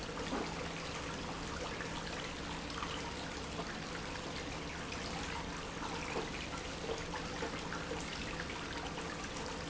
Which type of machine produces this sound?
pump